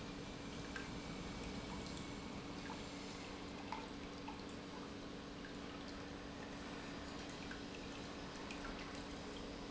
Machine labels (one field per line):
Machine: pump